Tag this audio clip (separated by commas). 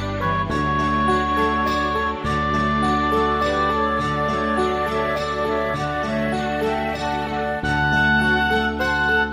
Music